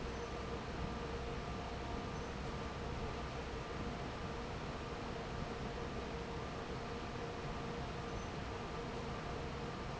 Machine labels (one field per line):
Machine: fan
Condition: normal